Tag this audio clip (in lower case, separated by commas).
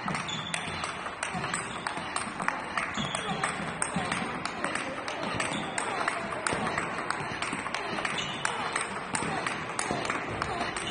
playing table tennis